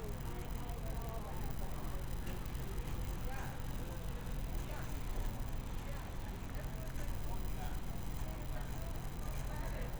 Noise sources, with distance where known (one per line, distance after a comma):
person or small group talking, far